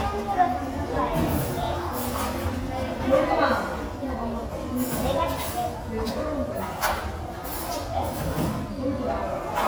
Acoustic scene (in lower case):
restaurant